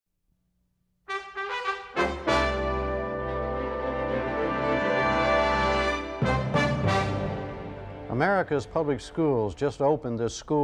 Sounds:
speech, trombone, brass instrument, music

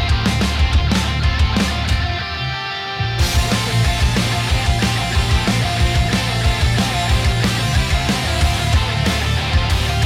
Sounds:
music, exciting music

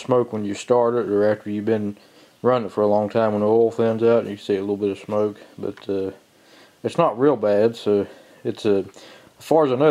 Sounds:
speech

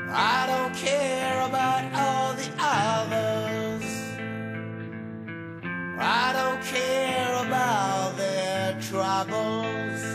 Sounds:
music

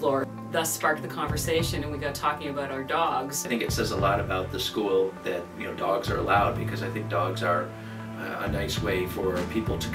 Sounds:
speech, music

